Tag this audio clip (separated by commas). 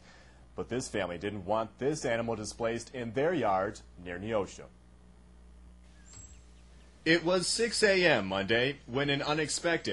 Speech